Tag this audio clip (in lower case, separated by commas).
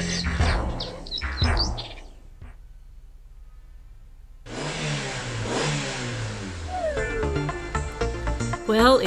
car